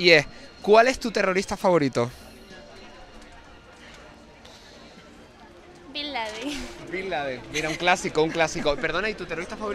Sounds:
Speech

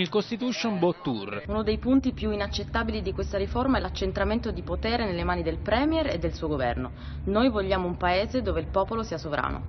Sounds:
Speech

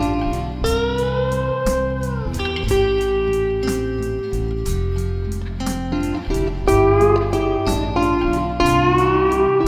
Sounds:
Steel guitar, Music

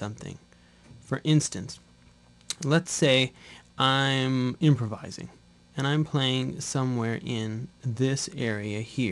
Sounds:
Speech

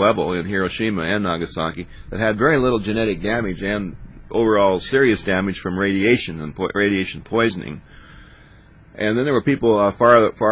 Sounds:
Speech

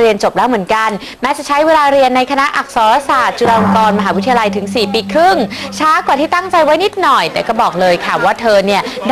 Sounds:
Speech

